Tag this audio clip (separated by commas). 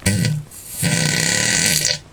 Fart